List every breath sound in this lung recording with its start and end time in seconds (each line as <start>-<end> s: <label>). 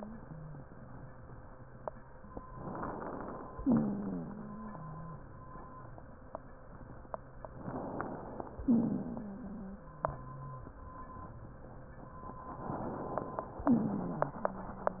2.58-3.59 s: inhalation
3.65-4.29 s: exhalation
3.65-5.24 s: wheeze
7.63-8.63 s: inhalation
8.65-9.30 s: exhalation
8.67-10.78 s: wheeze
12.66-13.66 s: inhalation
13.66-14.40 s: exhalation
13.66-14.40 s: wheeze